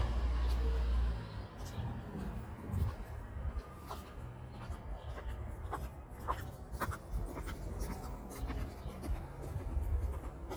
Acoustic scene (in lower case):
residential area